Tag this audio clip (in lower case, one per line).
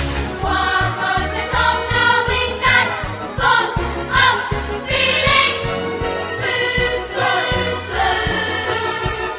jingle (music)